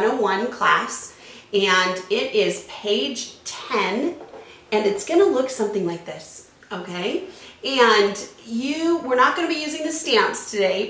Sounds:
speech

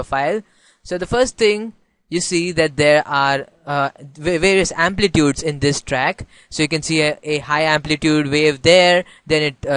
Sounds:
speech

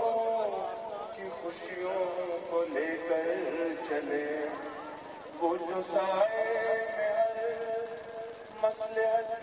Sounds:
male singing

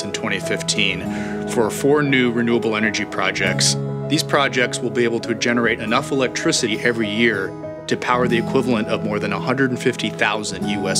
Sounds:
music
speech

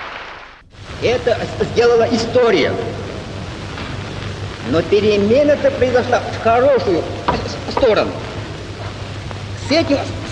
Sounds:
speech
monologue
man speaking

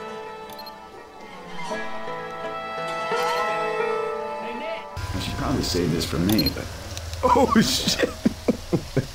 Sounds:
speech
music

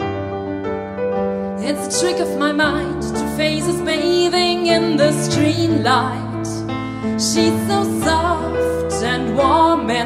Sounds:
music

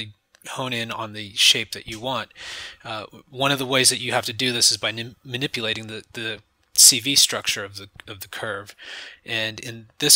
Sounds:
speech

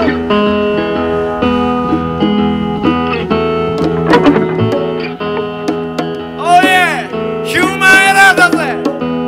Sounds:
music

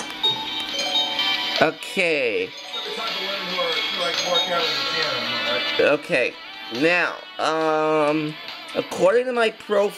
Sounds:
speech
music

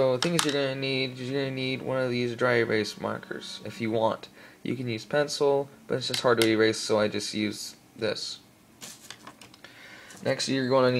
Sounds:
speech

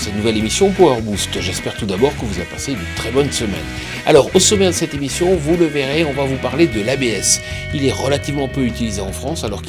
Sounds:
music
speech

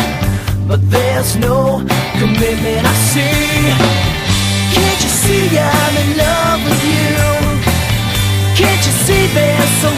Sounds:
music

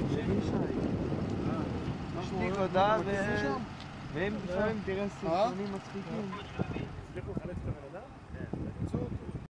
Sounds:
vehicle
truck
speech

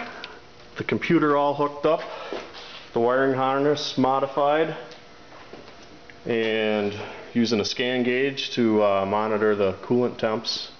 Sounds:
speech

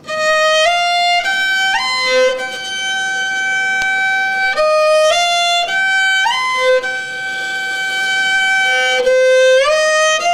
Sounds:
music

